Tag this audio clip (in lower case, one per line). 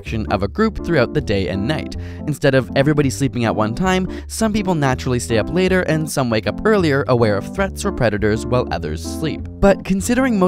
music
speech